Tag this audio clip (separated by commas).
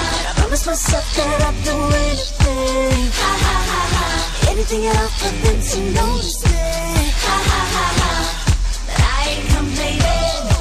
Pop music, Music